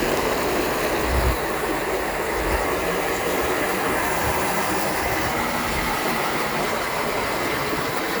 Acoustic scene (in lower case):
park